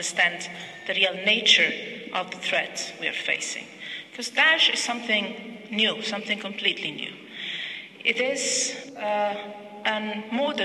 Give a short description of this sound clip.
A woman giving a speech